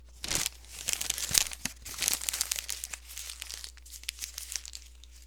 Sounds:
crumpling

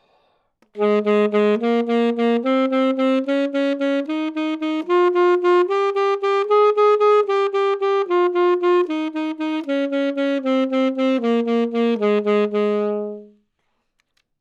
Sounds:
woodwind instrument
musical instrument
music

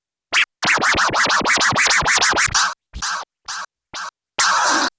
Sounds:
music
scratching (performance technique)
musical instrument

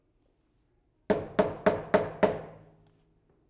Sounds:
domestic sounds
door
knock

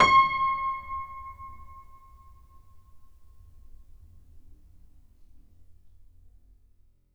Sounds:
musical instrument
keyboard (musical)
piano
music

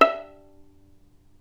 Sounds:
bowed string instrument
musical instrument
music

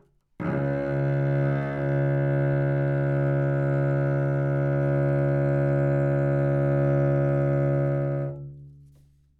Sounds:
musical instrument
bowed string instrument
music

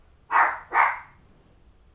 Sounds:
dog
pets
animal

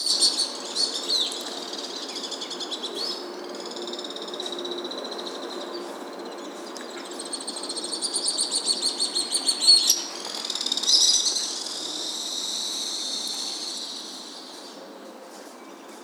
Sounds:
animal
bird call
bird
wild animals

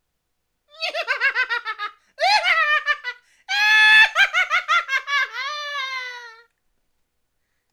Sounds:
laughter
human voice

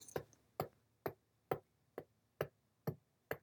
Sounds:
hammer
tools

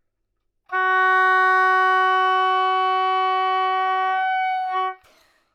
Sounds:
woodwind instrument
music
musical instrument

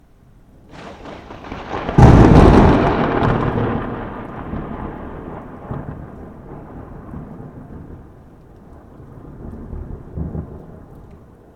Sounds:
thunder
thunderstorm

